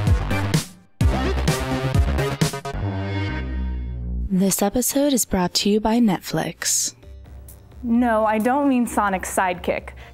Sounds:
Narration

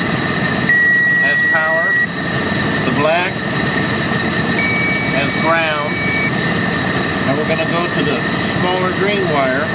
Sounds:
hedge trimmer running

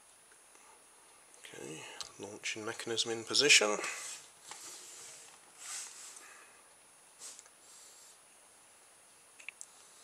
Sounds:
Speech, inside a small room

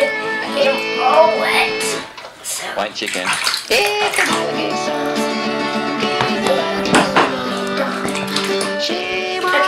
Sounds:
Speech, Child speech, Music

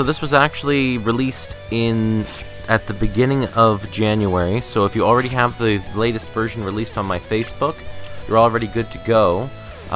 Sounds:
Music, Speech

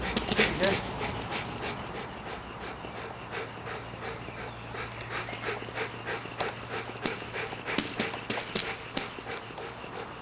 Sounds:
Domestic animals, Animal, Dog

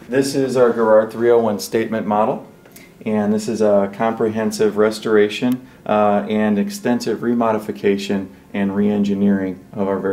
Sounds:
Speech

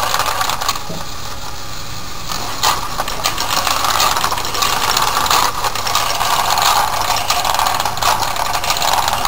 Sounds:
inside a small room

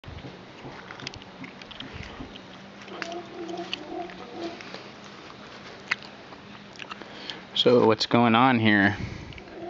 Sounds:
Speech

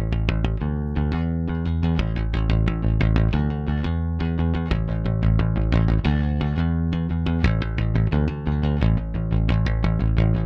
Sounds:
playing bass guitar

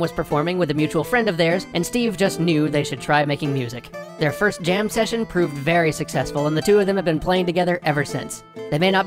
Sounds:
Acoustic guitar, Music, Speech

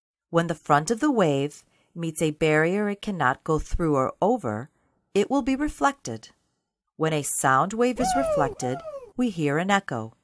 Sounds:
Speech

